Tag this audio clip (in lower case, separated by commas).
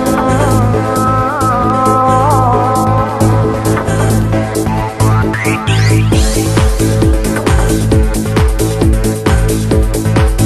music